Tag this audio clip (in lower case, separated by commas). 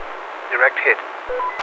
man speaking, human voice, speech